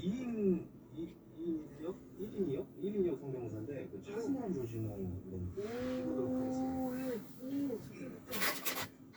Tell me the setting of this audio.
car